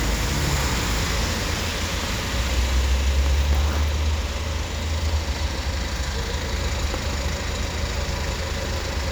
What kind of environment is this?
street